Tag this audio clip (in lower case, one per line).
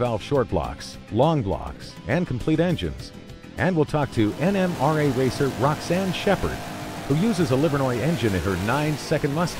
speech
vehicle
car
medium engine (mid frequency)
accelerating
music